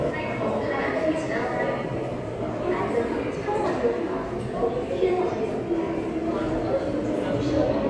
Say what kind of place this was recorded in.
subway station